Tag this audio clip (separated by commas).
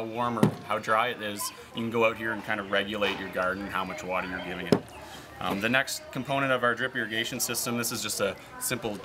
Speech